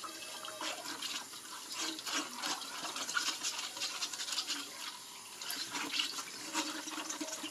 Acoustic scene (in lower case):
kitchen